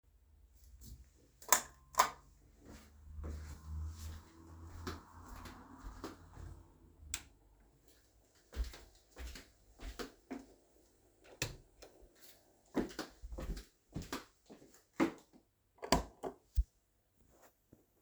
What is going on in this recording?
I turned off the standing light first. Then I switched off the extractor hood light in the kitchen. After that, I turned off the kitchen light and finally the hallway light.